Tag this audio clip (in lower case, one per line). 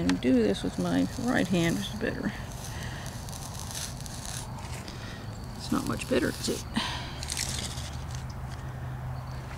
speech